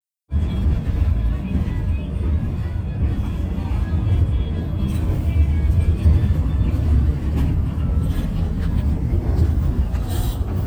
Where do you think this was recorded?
on a bus